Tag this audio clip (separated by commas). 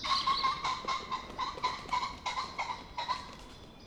bird call, Animal, Wild animals, Bird